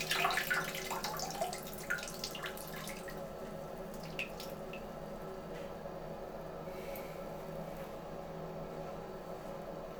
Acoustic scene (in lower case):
restroom